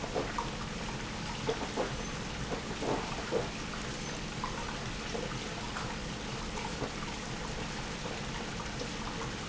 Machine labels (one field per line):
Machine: pump